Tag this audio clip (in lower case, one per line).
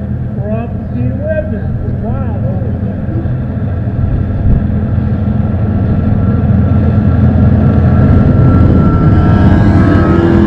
boat
motorboat
vehicle
speech